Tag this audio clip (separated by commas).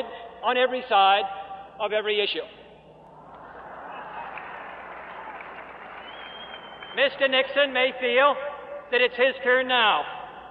Speech, man speaking